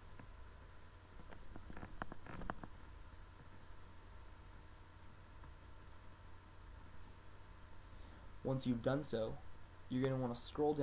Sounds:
Speech

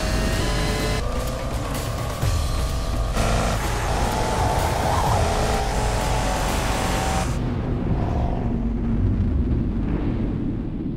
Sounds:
Vehicle, Music, Car

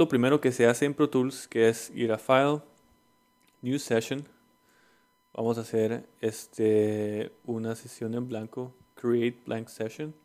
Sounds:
Speech

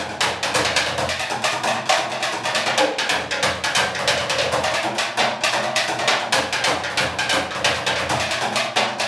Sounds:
Music

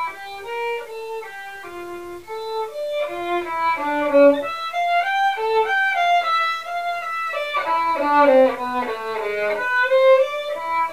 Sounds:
Musical instrument, Music, fiddle

